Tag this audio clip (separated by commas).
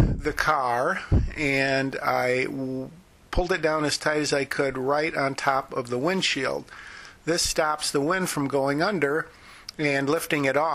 Speech